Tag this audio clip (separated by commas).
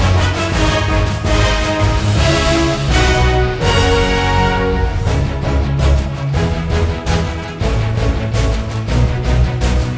Music